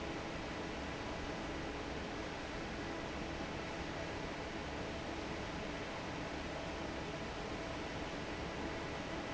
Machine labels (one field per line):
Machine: fan